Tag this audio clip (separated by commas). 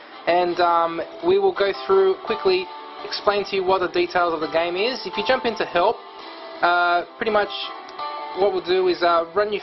Background music, Music, Speech